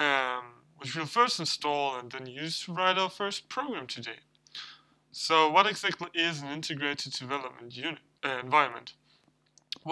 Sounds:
Speech

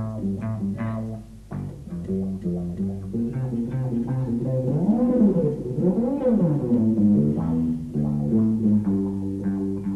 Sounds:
Brass instrument, Musical instrument, Double bass, Music

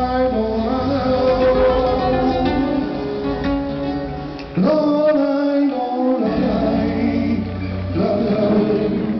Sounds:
Vocal music

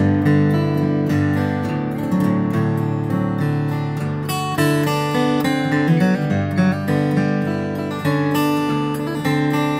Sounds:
Musical instrument, Guitar, Plucked string instrument, Strum, Music, Acoustic guitar, Electric guitar

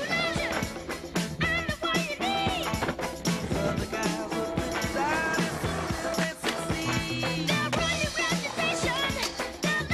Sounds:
Music

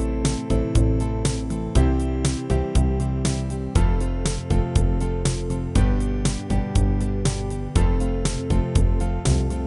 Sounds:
Music

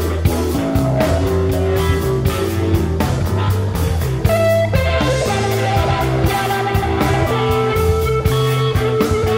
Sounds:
Rock music, Music, Rock and roll

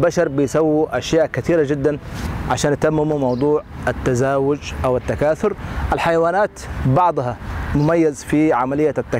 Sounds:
outside, urban or man-made, man speaking, Speech

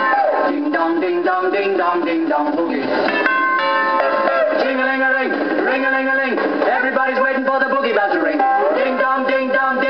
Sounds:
Music, Ding

